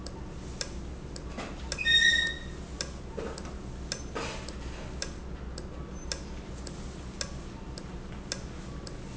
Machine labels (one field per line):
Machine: valve